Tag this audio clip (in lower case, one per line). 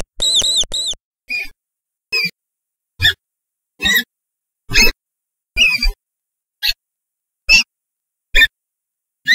mouse squeaking